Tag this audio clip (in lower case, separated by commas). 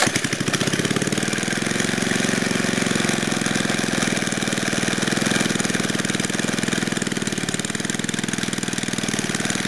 tools, lawn mowing, lawn mower